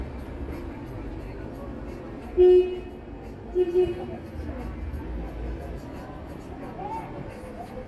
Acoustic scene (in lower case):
street